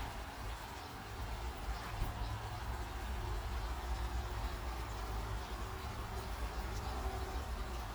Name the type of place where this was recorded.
park